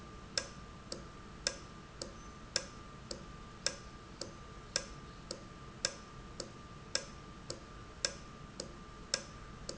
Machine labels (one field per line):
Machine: valve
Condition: normal